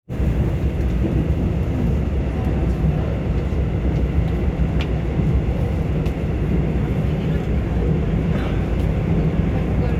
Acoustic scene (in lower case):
subway train